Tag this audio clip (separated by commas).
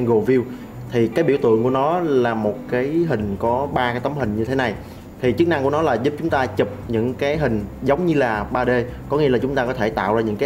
Speech, Music